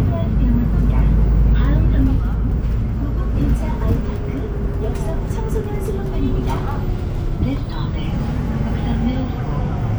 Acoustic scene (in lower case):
bus